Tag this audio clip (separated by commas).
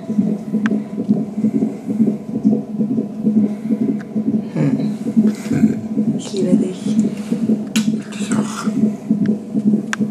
heartbeat